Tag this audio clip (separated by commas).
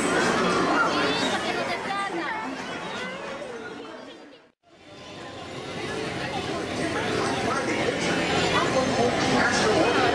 Speech